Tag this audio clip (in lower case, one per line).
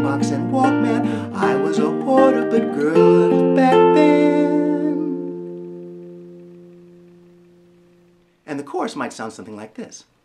guitar
plucked string instrument
speech
inside a small room
musical instrument
music